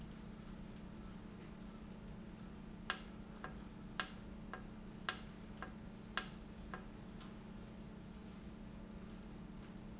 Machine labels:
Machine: valve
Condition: normal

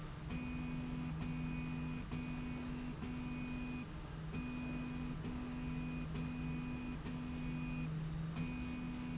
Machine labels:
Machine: slide rail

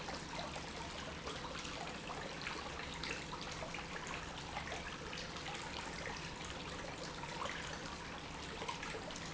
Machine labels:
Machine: pump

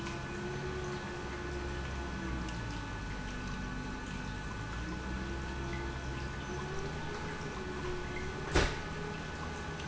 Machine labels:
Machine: pump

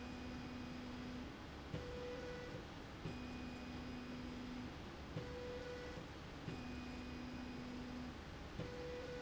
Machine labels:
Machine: slide rail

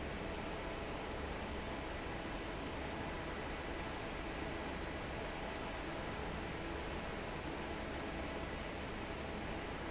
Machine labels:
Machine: fan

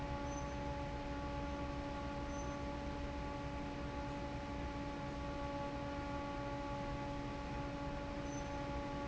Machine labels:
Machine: fan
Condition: normal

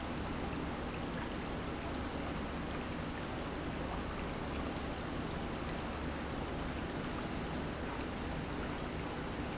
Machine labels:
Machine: pump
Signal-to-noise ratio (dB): -6 dB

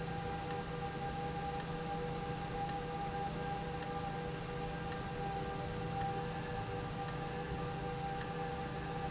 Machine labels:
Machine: valve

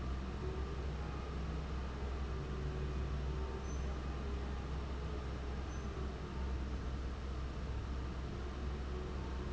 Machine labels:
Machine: fan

